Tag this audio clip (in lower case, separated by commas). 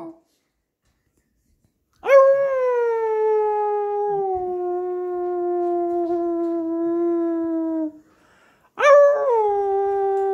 dog howling